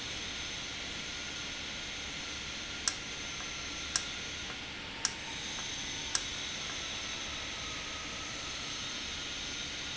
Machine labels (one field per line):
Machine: valve